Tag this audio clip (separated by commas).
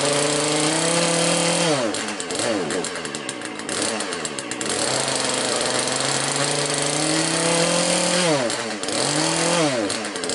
Power tool